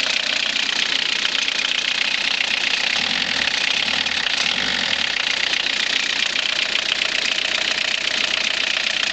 A small motor is running and being revved somewhat